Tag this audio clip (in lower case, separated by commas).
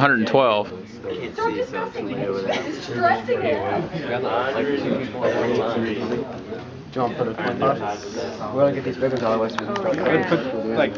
speech